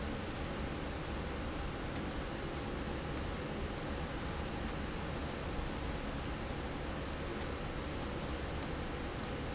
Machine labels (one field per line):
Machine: slide rail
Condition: abnormal